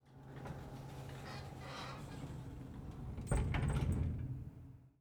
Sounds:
door, domestic sounds, sliding door

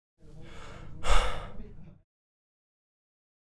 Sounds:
human voice, sigh

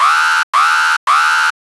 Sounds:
alarm

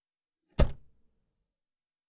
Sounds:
motor vehicle (road), car, vehicle

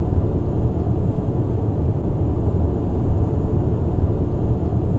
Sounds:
engine, aircraft, vehicle

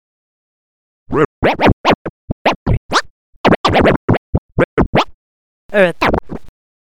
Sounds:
music, musical instrument, scratching (performance technique)

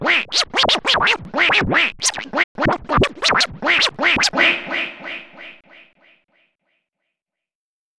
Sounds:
scratching (performance technique), musical instrument, music

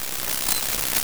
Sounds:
insect, wild animals, animal

